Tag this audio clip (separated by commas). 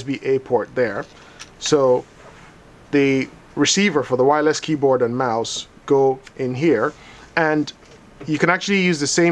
Speech